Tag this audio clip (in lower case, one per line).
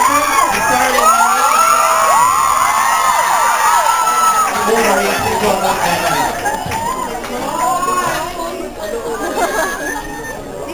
speech